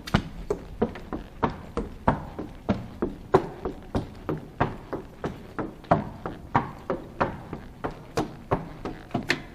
The sound of a horse walking on wood